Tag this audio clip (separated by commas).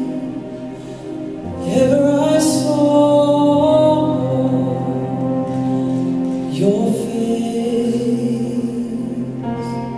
Male singing, Music